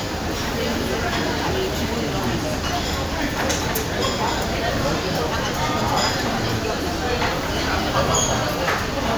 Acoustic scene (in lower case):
crowded indoor space